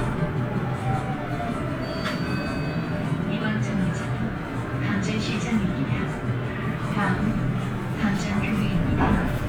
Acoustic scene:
bus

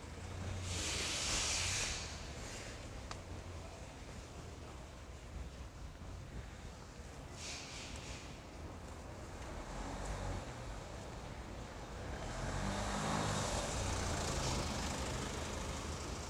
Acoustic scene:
residential area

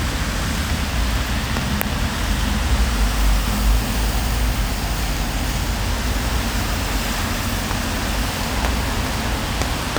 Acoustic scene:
street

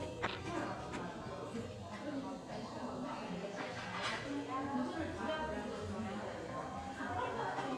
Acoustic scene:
cafe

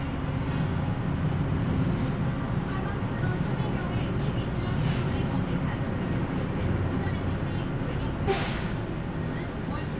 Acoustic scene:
bus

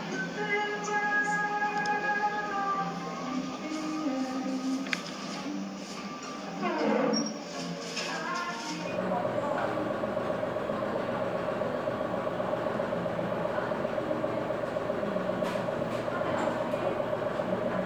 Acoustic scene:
cafe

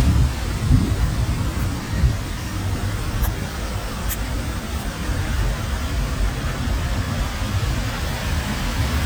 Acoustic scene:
street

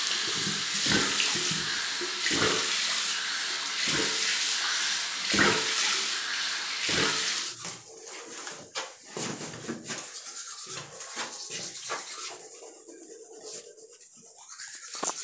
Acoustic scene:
restroom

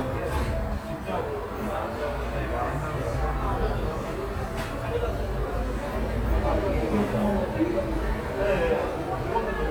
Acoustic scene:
cafe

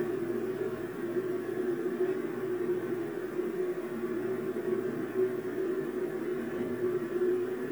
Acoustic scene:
subway train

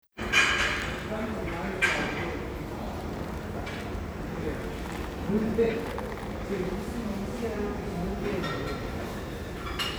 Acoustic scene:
crowded indoor space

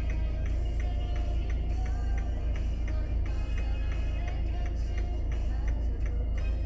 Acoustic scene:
car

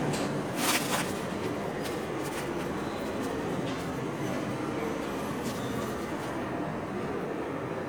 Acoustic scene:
subway station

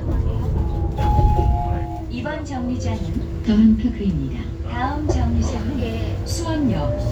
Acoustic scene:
bus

